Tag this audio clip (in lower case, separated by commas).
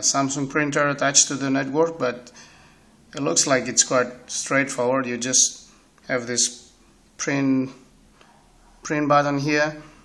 speech